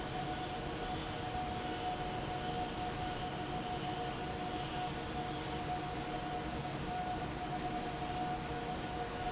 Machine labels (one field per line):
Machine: fan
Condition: normal